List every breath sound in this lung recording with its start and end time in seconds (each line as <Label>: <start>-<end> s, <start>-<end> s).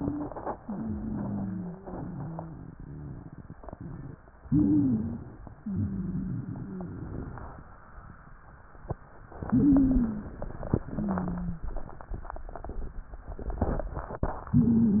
Inhalation: 4.43-5.44 s, 9.35-10.34 s
Exhalation: 0.56-3.57 s, 5.54-7.46 s
Wheeze: 0.00-0.53 s, 0.56-3.57 s, 4.43-5.44 s, 5.54-7.46 s, 9.35-10.34 s, 10.85-11.71 s, 14.53-15.00 s